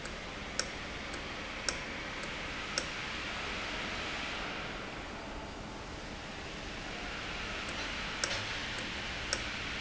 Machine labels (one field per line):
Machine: valve